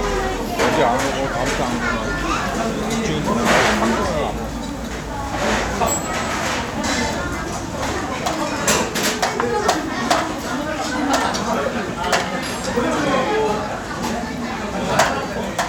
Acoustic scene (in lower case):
restaurant